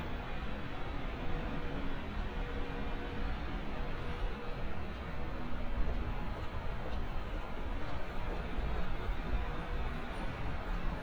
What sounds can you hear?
large-sounding engine